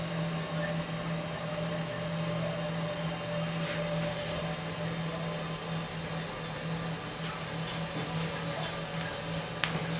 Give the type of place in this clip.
restroom